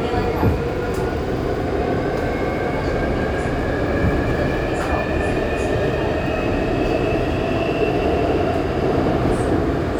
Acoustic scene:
subway train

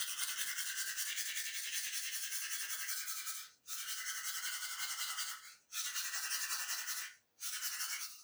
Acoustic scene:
restroom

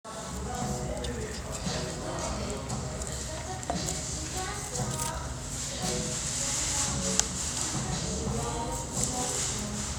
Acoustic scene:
restaurant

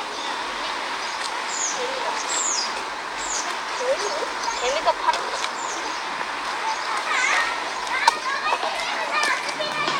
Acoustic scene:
park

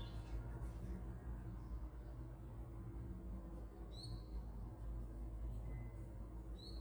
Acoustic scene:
park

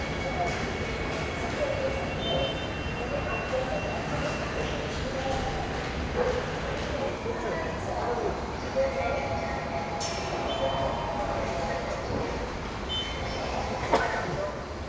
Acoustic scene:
subway station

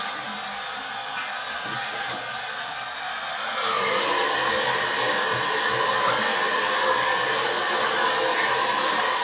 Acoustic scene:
restroom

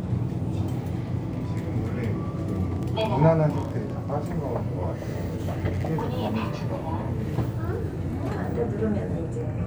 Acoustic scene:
elevator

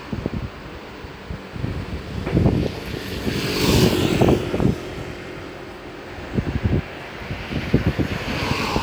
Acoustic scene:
street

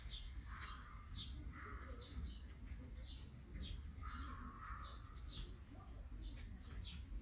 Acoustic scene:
park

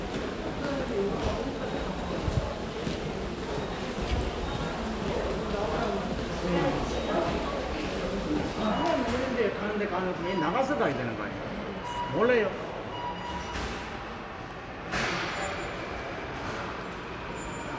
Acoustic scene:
subway station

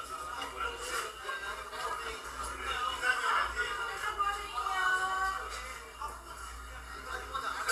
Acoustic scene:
crowded indoor space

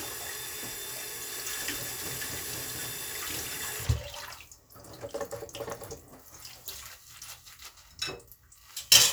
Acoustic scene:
kitchen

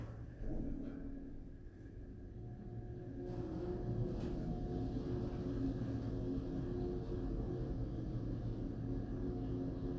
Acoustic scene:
elevator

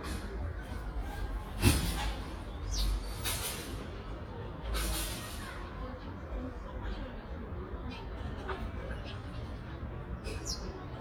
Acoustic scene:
residential area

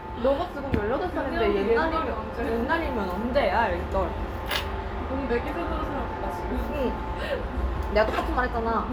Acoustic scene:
restaurant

